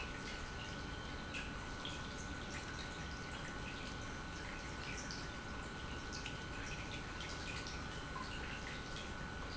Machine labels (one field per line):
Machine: pump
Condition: normal